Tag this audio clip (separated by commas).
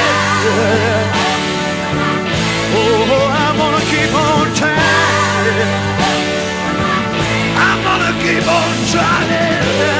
Music